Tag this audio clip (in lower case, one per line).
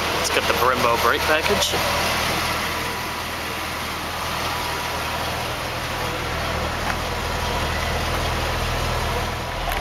vehicle
car
speech
outside, urban or man-made